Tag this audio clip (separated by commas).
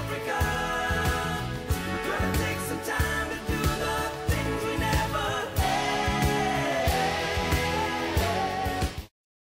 Music